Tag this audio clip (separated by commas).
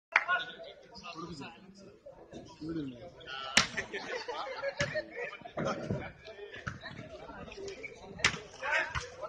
playing volleyball